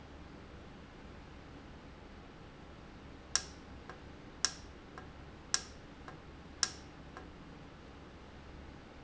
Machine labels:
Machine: valve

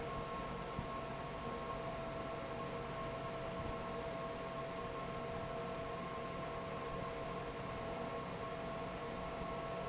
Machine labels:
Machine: fan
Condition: normal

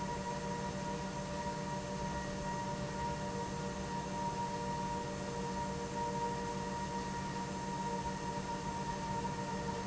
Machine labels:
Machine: pump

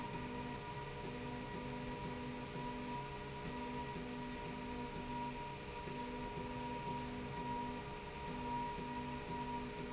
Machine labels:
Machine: slide rail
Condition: normal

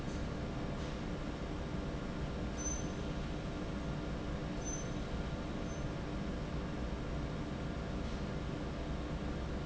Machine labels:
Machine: fan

